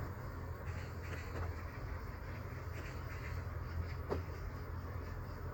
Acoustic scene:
park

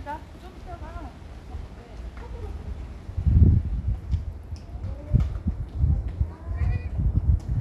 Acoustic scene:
residential area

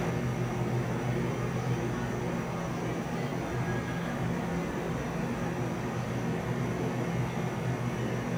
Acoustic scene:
cafe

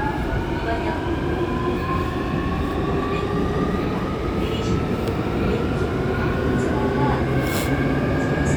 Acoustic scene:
subway train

